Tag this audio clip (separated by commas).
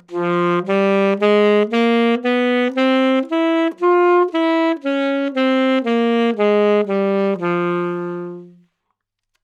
Music, Wind instrument, Musical instrument